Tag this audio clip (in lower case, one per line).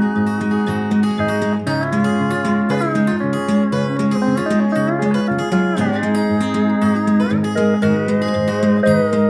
musical instrument
music
guitar
acoustic guitar